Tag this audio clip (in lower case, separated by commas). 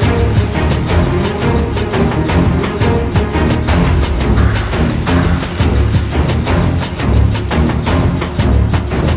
music